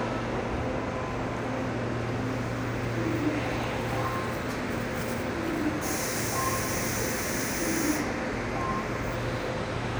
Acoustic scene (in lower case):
subway station